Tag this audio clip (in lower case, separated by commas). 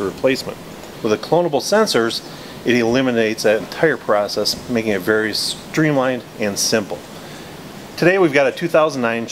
speech